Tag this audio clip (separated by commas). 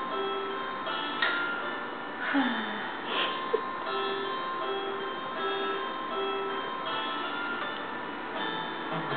Music